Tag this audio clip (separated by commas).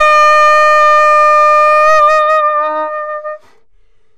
woodwind instrument, Musical instrument, Music